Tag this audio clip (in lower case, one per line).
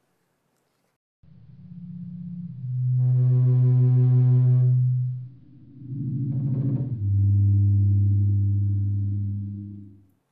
music